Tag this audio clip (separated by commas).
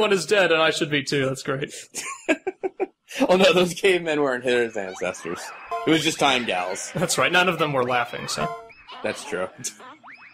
Speech